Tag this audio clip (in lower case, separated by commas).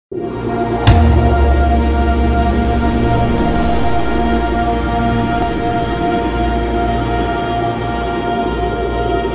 music, scary music